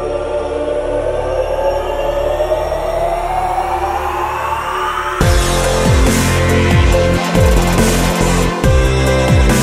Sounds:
music

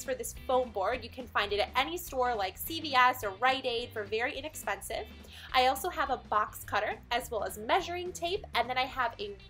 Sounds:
speech, music

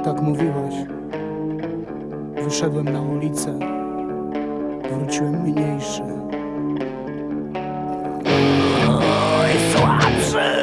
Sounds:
music, speech

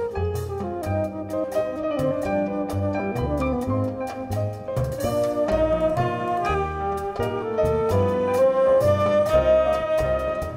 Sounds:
jazz, music

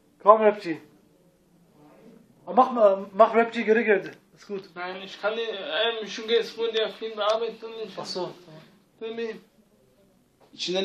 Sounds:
speech

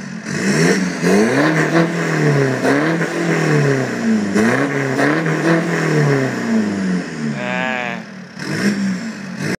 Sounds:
speech

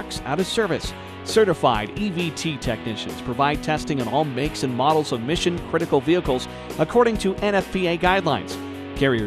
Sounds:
music, speech

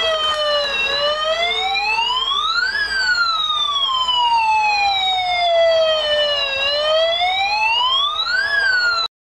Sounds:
police car (siren)

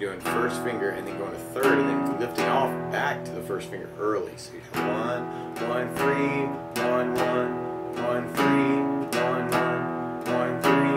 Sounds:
strum, speech, music

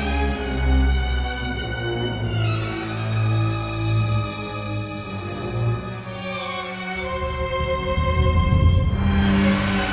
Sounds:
music

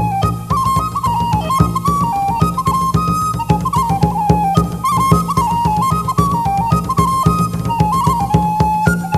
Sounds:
music, rustling leaves

